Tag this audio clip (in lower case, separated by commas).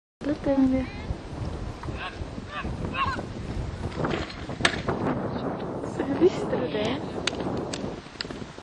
speech, horse, animal, clip-clop